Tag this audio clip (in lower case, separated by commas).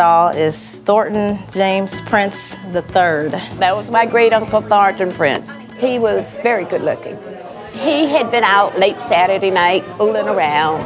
music, speech